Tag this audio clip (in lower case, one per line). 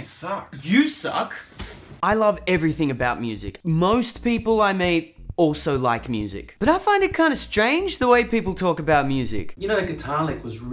music
speech